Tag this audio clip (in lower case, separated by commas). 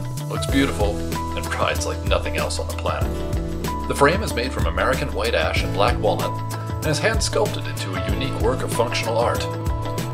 music, speech